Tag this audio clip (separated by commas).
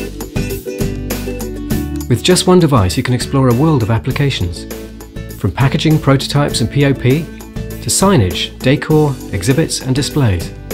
Music, Speech